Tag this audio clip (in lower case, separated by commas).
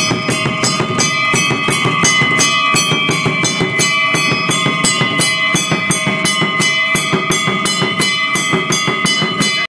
drum, bass drum, musical instrument, music